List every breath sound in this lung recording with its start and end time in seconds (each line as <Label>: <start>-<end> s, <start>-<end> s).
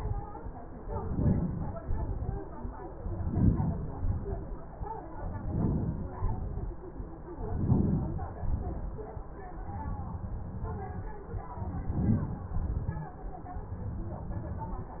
Inhalation: 0.76-1.65 s, 2.98-3.81 s, 5.03-6.04 s, 7.27-8.08 s, 11.40-12.38 s
Exhalation: 1.65-2.60 s, 3.85-4.75 s, 5.98-6.72 s, 8.18-9.20 s, 12.41-13.18 s